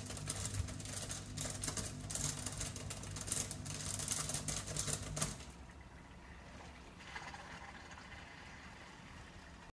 A small fluttery vibration